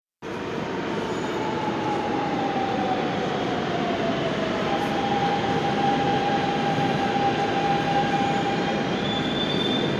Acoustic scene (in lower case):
subway station